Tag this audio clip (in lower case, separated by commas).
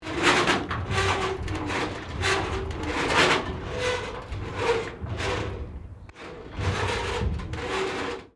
screech, domestic sounds, door